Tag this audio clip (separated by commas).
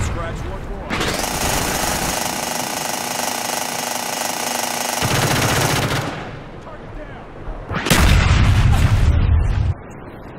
Speech, outside, rural or natural